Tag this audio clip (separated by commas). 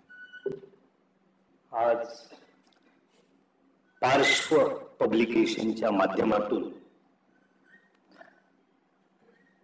man speaking, Speech, monologue